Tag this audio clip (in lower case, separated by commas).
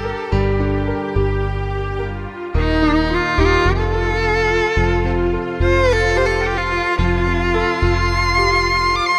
music, sad music